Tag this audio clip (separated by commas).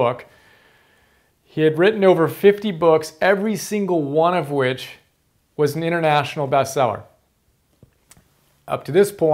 Speech